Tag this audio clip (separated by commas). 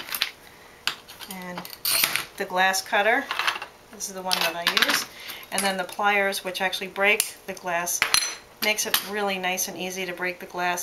Speech